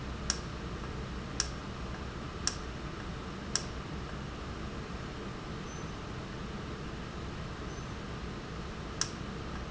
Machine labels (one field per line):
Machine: valve